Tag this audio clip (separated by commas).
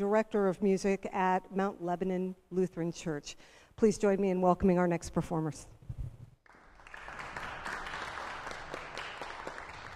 Speech